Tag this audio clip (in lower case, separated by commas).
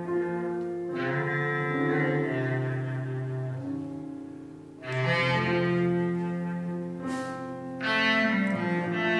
music, jazz, musical instrument